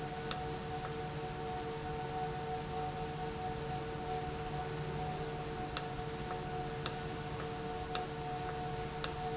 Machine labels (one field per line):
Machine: valve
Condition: normal